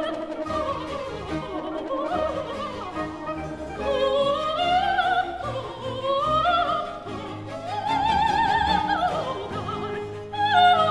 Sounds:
musical instrument
classical music
singing
music
opera
orchestra

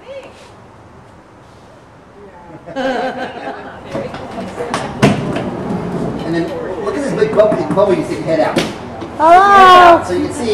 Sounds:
speech

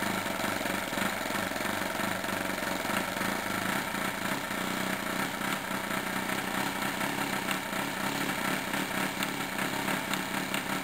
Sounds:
idling
medium engine (mid frequency)
engine

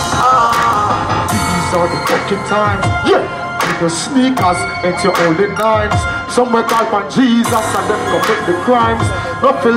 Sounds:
music

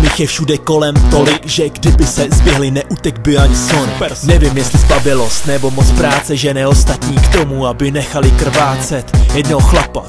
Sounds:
electronic music
music
hip hop music
rapping

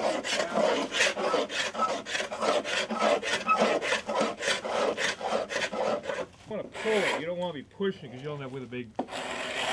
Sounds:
rub

